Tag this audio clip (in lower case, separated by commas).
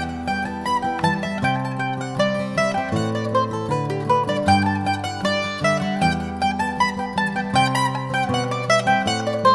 music, mandolin